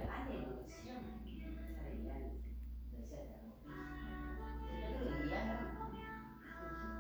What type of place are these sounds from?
crowded indoor space